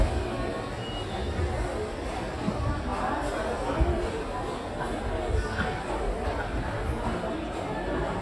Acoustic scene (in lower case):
crowded indoor space